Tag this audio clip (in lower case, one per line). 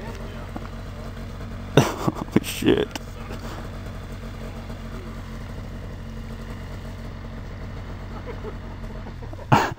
speech